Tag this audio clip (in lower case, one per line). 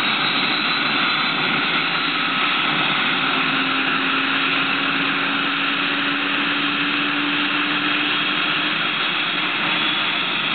helicopter
vehicle